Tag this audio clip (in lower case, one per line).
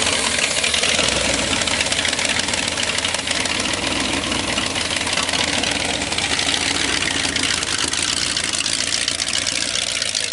car engine starting